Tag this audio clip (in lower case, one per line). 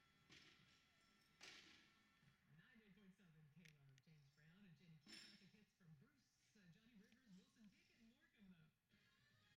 speech